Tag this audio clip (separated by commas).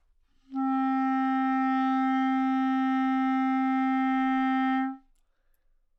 Music, Wind instrument, Musical instrument